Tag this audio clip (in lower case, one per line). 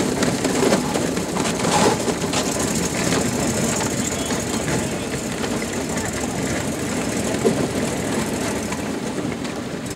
speedboat
water vehicle